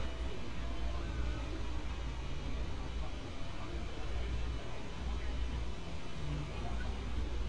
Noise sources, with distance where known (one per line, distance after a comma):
person or small group talking